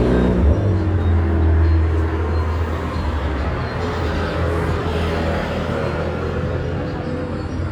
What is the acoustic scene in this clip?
street